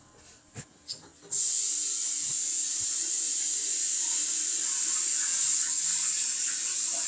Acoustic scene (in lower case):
restroom